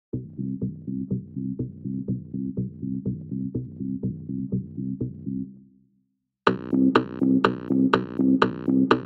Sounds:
music
drum machine

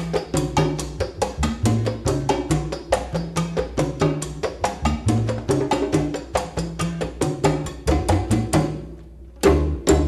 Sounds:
playing timbales

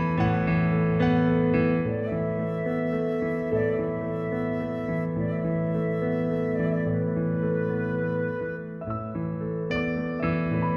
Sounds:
music

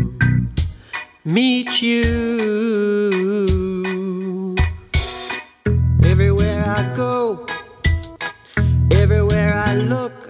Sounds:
music

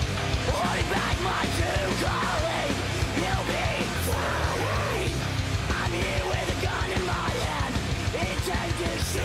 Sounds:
rhythm and blues
music

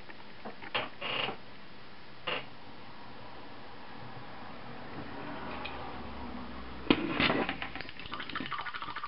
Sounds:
inside a small room

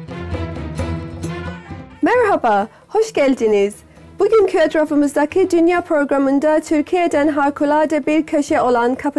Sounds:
speech
music

